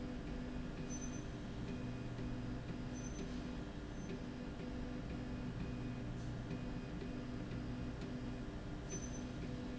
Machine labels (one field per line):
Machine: slide rail